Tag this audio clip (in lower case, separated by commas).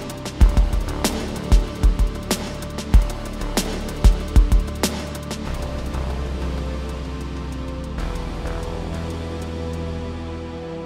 music